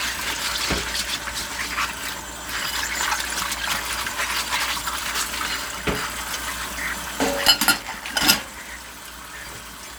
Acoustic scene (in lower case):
kitchen